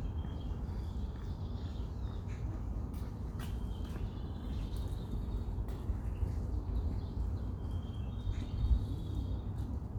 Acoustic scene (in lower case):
park